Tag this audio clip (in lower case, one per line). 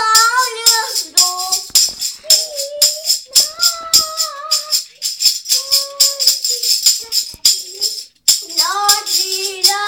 playing tambourine